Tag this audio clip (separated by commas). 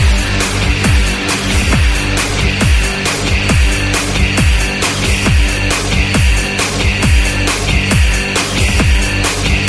Trance music, Dance music, Music, Electronic music